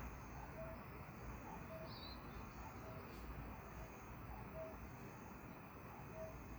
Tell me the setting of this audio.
park